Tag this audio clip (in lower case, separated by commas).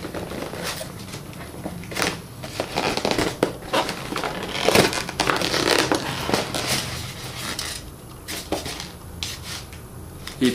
inside a small room